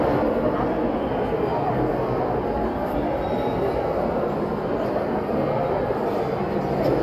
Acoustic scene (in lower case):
crowded indoor space